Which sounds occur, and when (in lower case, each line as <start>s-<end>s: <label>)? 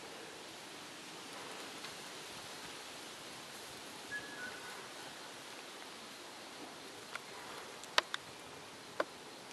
0.0s-9.5s: background noise
4.1s-4.9s: music
7.8s-8.2s: generic impact sounds
8.8s-9.4s: generic impact sounds